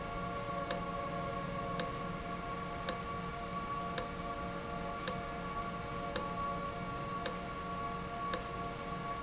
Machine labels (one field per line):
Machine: valve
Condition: abnormal